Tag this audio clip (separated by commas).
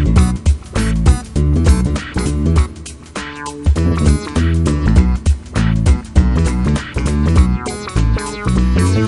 Music